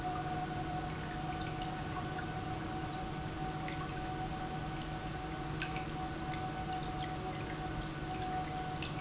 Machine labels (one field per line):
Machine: pump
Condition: normal